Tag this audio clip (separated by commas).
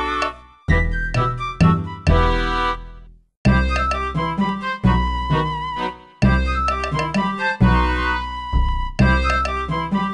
Music